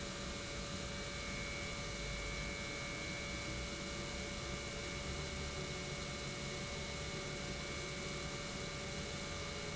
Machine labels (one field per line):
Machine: pump